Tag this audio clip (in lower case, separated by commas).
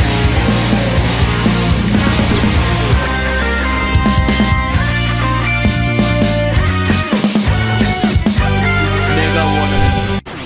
speech, music